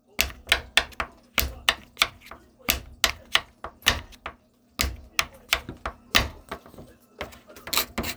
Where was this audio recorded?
in a kitchen